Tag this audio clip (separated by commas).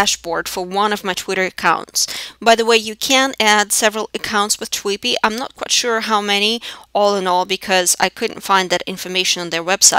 Speech